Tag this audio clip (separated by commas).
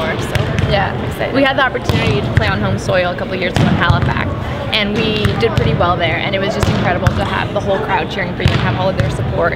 playing volleyball